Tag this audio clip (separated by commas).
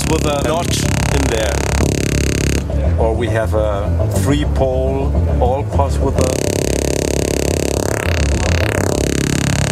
Speech, Synthesizer